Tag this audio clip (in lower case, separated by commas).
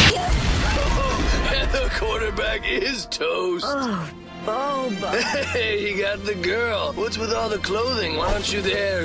music, speech